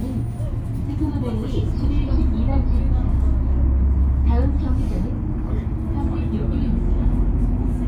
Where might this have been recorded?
on a bus